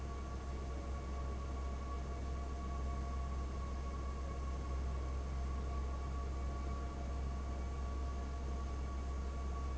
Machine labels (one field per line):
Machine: fan